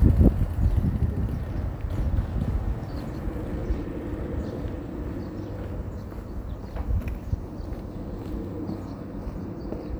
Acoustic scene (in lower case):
residential area